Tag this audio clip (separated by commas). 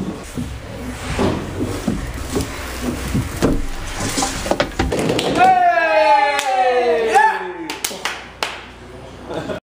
Speech